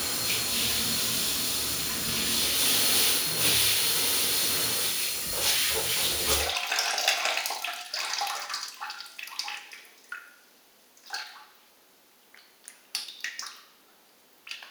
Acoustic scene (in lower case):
restroom